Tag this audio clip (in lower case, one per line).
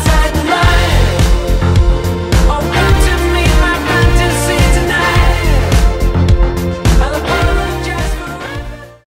music